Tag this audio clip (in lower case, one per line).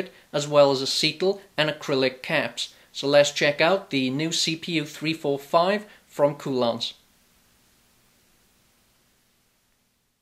speech